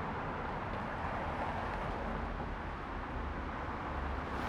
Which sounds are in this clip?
car, car wheels rolling